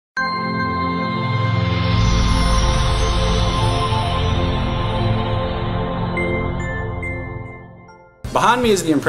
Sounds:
speech, music

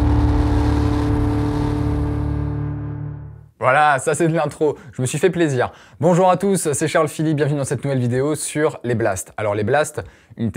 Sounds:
speech, music

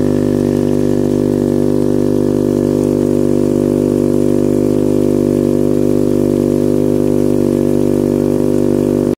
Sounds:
water, pump (liquid)

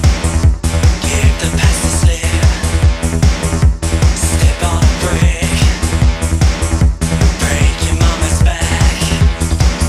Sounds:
music

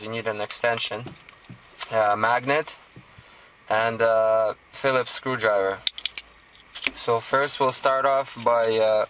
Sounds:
speech

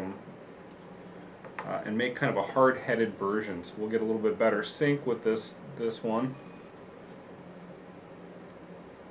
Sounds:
speech

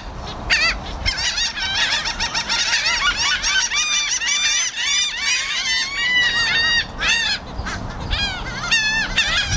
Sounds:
bird squawking

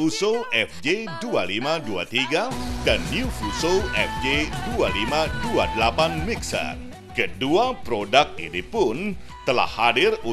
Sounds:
music, speech

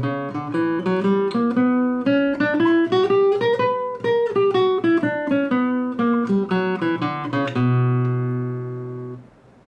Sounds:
music, musical instrument, guitar

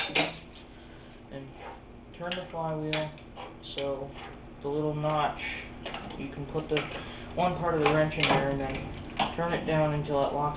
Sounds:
inside a large room or hall, speech

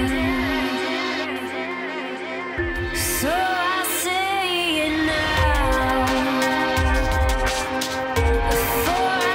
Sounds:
music

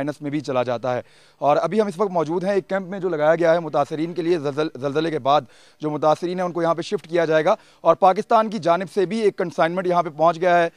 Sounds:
speech

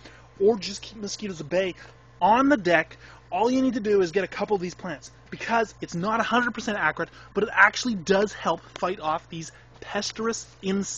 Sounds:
speech

